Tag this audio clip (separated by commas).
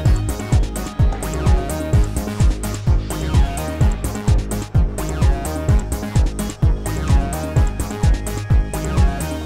Music